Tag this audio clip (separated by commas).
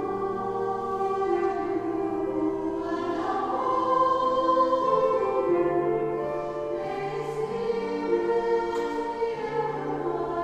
Choir, Female singing, Music